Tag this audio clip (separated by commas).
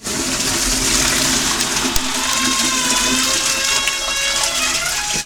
Domestic sounds, Toilet flush, Door